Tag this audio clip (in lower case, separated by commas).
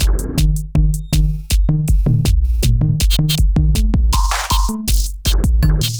percussion, drum kit, music, musical instrument